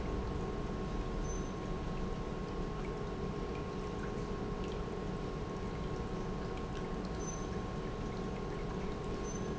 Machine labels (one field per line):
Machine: pump